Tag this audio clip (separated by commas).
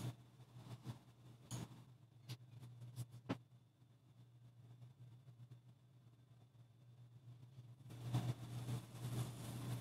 Silence